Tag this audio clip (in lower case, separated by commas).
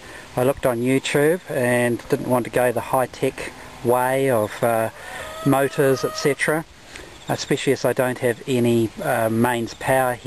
speech